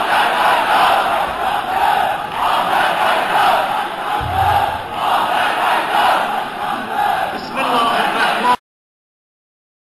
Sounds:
Speech

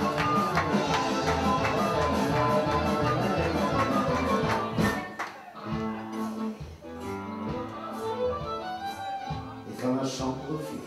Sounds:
Music, Traditional music, Rhythm and blues, Speech

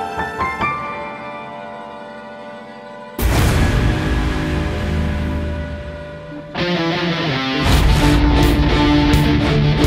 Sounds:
Violin, Bowed string instrument

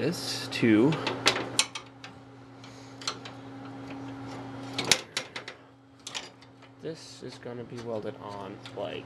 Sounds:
Speech

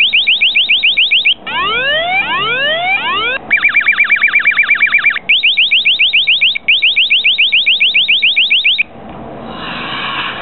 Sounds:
Alarm

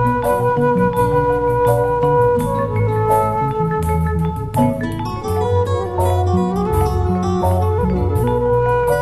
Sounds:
Jazz, Mandolin, Music

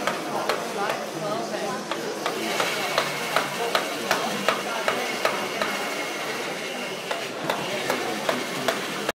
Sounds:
Speech

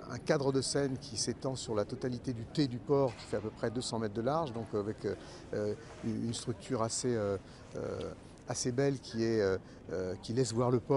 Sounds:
Speech

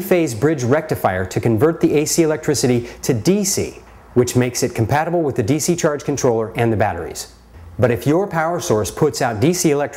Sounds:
Speech

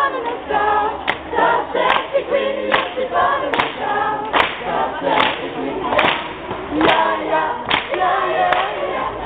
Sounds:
Female singing, Choir

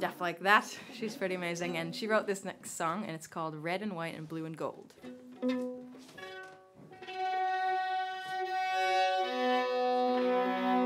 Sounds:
Speech, Music

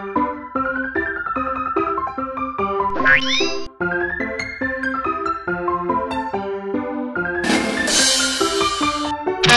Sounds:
Music, Bird

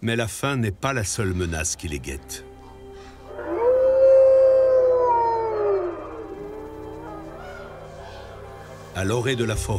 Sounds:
lions growling

